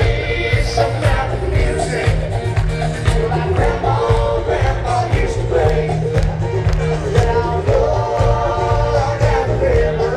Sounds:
Music, Soundtrack music

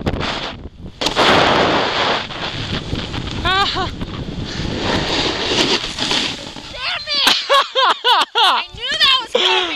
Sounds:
Speech

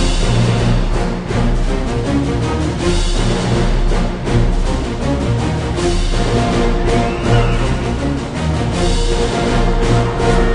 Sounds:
Music

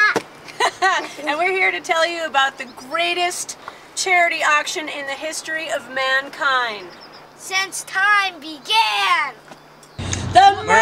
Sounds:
Vehicle, Speech

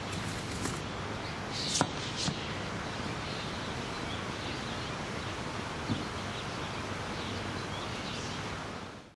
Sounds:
footsteps

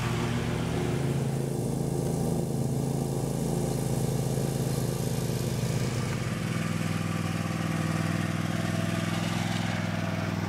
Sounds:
Lawn mower, Vehicle, lawn mowing

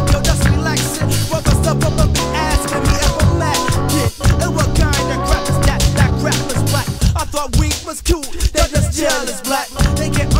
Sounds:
Rapping, Funk, Music

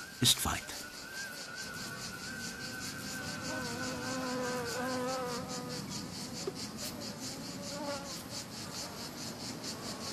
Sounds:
Insect, housefly, bee or wasp, etc. buzzing

